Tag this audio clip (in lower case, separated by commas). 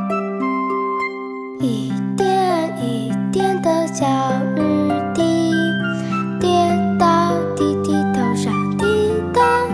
music